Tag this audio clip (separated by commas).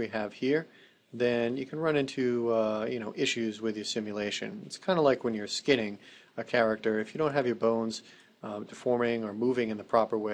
Speech